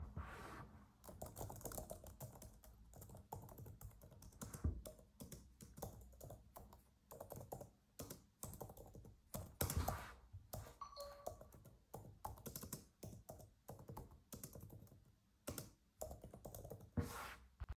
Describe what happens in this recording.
I was typing on the laptop and while I was doing that I received a phone notification.